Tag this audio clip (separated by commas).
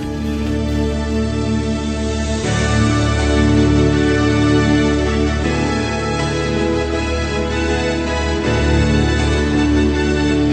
Music, Background music